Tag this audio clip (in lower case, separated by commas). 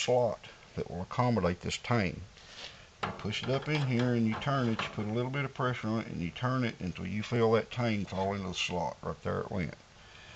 tools, speech